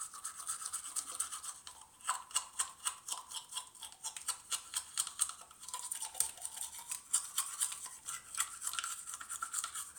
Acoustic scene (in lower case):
restroom